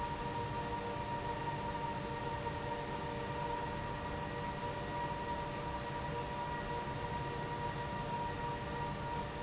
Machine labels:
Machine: pump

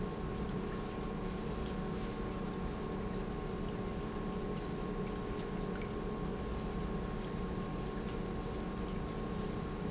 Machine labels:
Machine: pump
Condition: normal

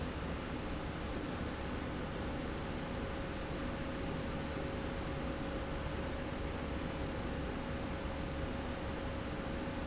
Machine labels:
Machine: slide rail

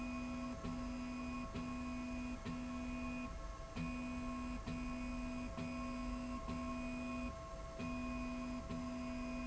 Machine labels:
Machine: slide rail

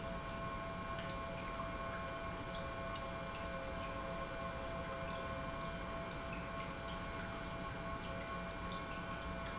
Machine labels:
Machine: pump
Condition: normal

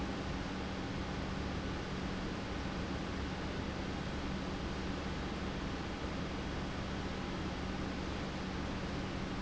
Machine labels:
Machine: pump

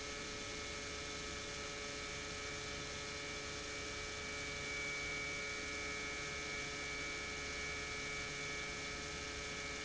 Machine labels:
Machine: pump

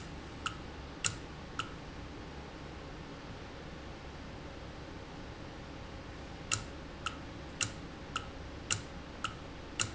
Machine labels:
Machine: valve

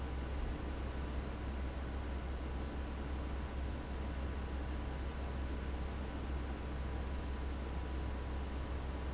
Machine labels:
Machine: fan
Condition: abnormal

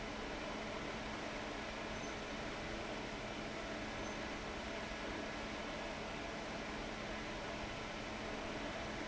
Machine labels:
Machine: fan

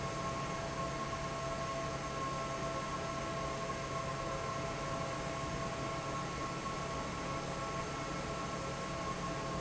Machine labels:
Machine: fan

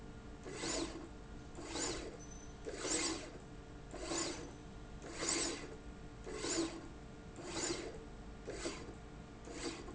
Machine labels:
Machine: slide rail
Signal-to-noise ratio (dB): 6 dB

